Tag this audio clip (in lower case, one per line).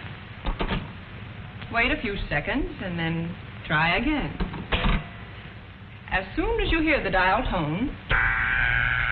telephone
speech